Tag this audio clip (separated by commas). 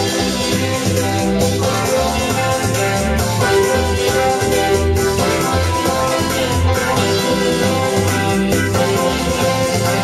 Sampler, Music